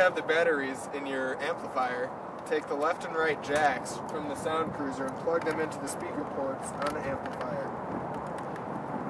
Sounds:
speech

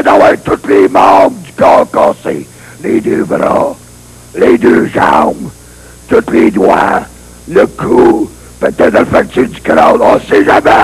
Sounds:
speech

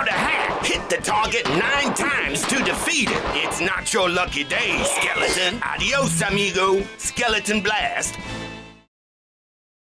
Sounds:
music, speech

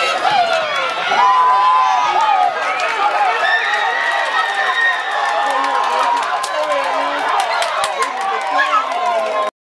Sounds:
speech, outside, urban or man-made, run

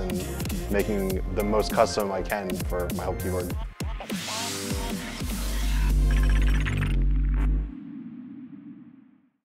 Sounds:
speech, music

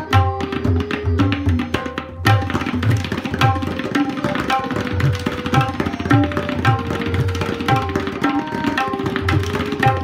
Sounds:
playing tabla

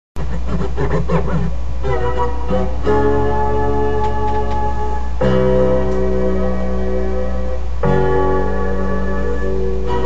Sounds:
inside a small room, music

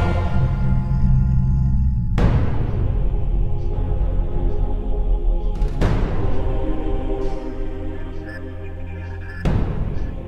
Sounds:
music, theme music, scary music

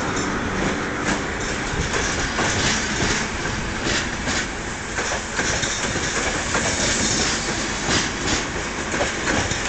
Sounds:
outside, urban or man-made, train, vehicle, train wagon

